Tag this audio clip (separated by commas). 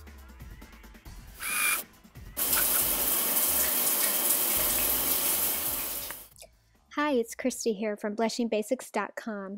Speech, inside a small room, Music